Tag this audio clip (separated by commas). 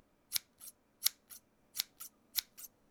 Scissors, home sounds